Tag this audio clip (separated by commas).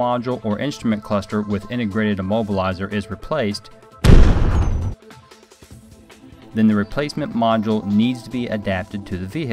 Music, Speech